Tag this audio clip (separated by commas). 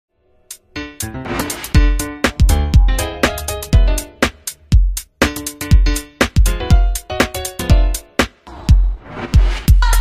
Music